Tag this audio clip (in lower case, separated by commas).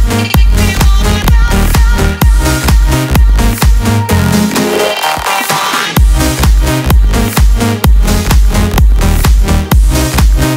music